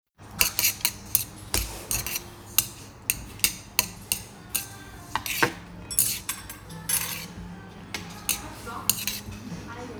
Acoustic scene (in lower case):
restaurant